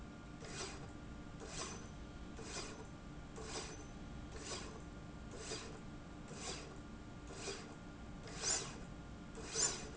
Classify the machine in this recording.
slide rail